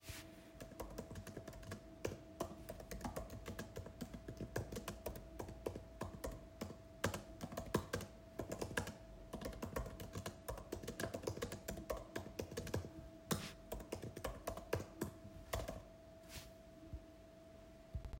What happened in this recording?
I placed the phone on a table and typed on the laptop keyboard for several second to record the typing sounds.